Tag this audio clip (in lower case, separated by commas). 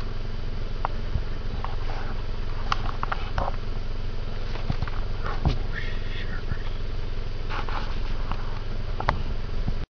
outside, rural or natural